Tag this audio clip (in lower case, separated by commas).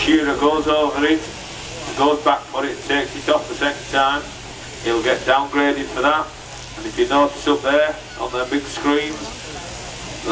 speech